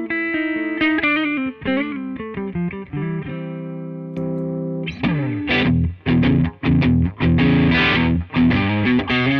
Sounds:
Music

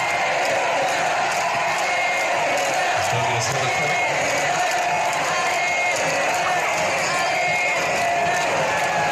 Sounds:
Speech

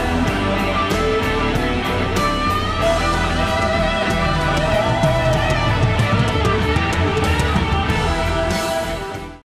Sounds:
Music

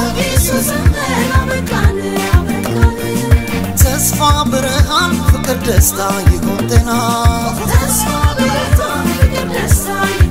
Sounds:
Music

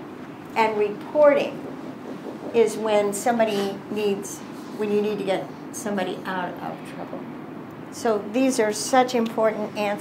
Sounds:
Female speech

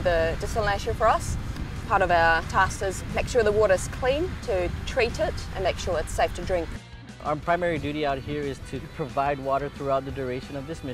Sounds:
Music, Speech

